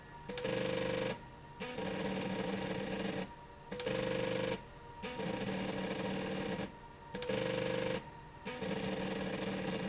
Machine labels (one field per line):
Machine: slide rail